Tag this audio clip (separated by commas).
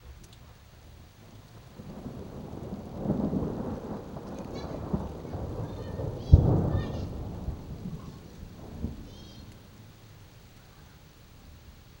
Thunderstorm, Thunder